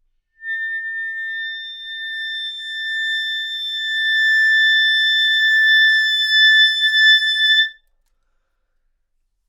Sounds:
wind instrument
music
musical instrument

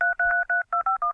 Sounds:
alarm
telephone

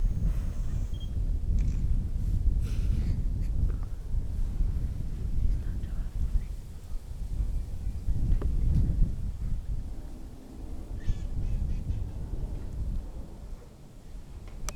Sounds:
camera
mechanisms

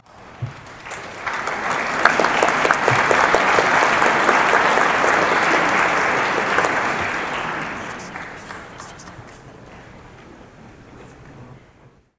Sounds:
human group actions
applause

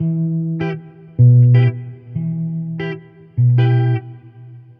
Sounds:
musical instrument
guitar
plucked string instrument
music
electric guitar

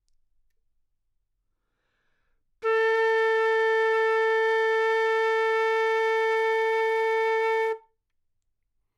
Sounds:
music
musical instrument
woodwind instrument

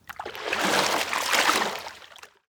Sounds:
water
liquid
splatter

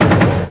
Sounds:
explosion
gunfire

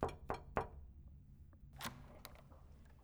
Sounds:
knock
home sounds
door

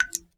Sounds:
raindrop
rain
water

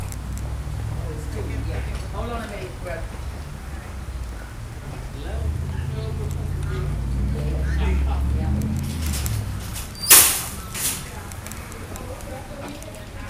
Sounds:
motor vehicle (road)
vehicle
bus

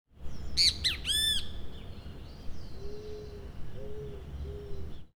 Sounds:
animal
bird
wild animals

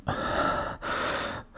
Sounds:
breathing
respiratory sounds

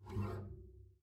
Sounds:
music
musical instrument
bowed string instrument

